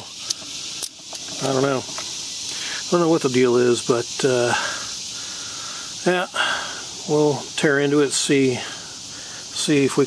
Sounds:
speech

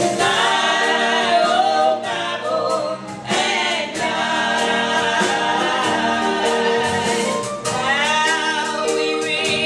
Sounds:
music
gospel music

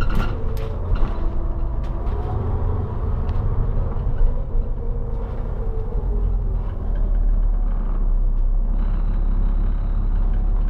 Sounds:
bus
driving buses
vehicle

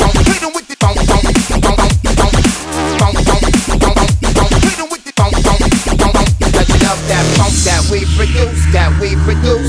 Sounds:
dubstep

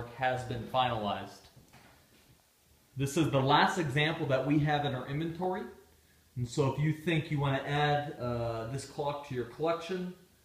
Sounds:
speech

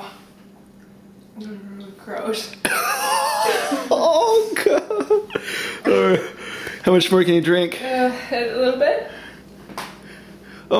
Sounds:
speech

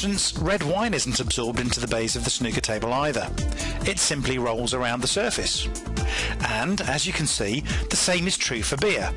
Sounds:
music
speech

